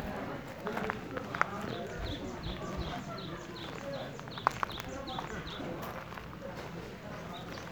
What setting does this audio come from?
park